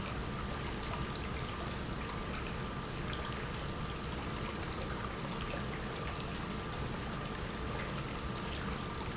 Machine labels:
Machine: pump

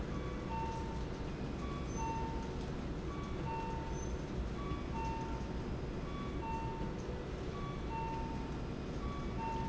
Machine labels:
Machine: slide rail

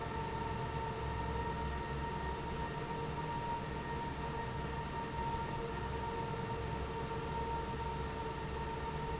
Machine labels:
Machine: fan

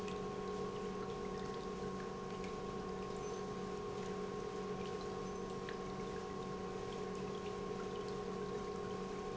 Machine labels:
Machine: pump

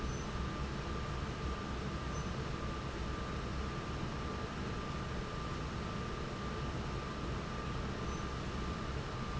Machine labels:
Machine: fan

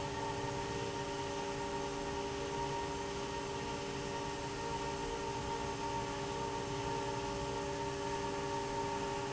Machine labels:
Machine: fan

